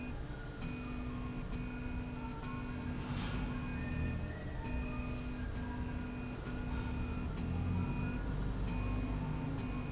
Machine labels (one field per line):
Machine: slide rail